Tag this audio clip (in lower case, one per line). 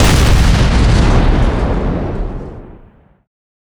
explosion
boom